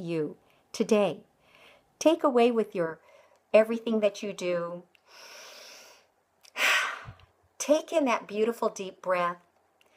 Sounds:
breathing, speech

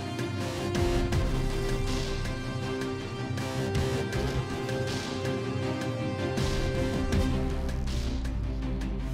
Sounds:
soundtrack music, music

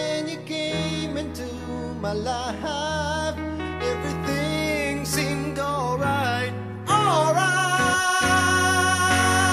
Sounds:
music

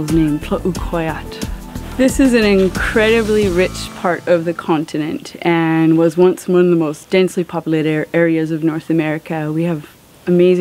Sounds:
music, speech

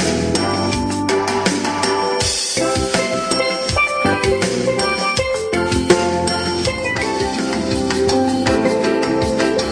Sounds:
musical instrument, music

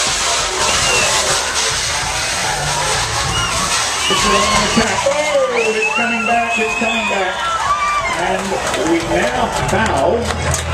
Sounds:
speech

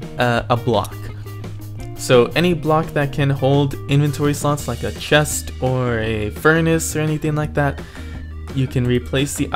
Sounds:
music, speech

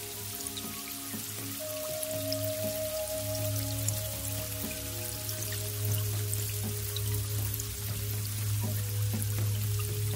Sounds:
music

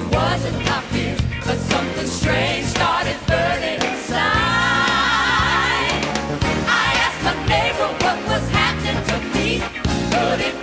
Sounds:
music

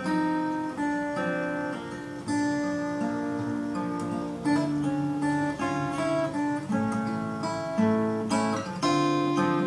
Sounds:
plucked string instrument, guitar, musical instrument, acoustic guitar, music

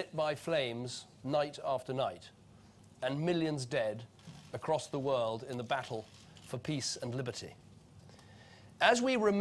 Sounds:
speech, monologue, man speaking

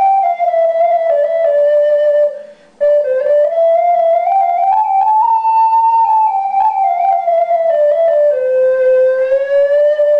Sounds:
playing flute

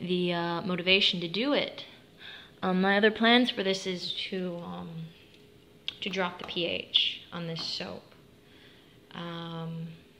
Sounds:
speech

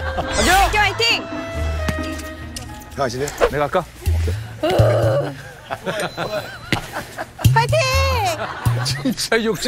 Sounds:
playing volleyball

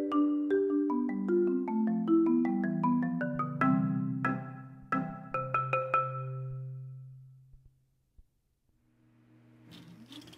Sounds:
xylophone, glockenspiel, mallet percussion

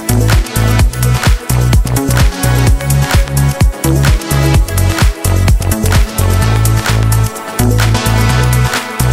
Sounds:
electronica, music, soundtrack music

